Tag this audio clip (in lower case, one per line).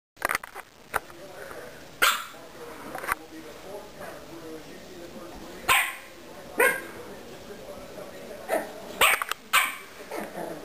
bark
speech
animal
domestic animals
dog